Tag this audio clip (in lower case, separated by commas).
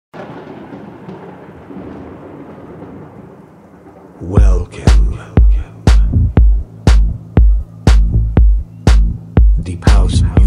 house music, music